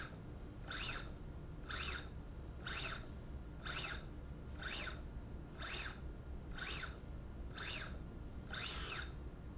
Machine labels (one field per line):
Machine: slide rail